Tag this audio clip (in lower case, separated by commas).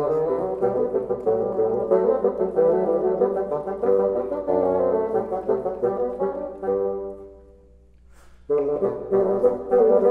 playing bassoon